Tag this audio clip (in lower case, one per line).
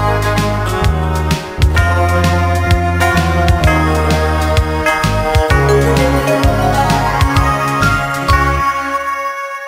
christian music
music
christmas music